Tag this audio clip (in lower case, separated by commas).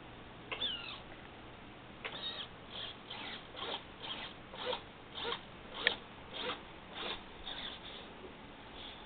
flap